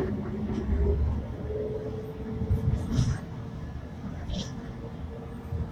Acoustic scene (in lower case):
bus